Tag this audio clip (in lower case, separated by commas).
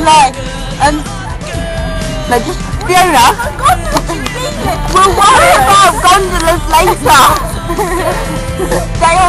music, speech